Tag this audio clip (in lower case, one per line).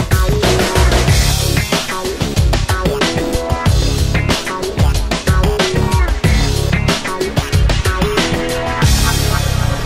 soul music
music